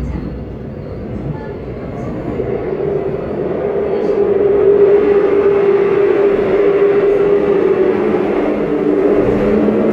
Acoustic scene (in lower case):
subway train